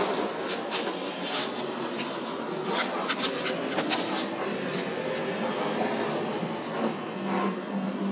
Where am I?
on a bus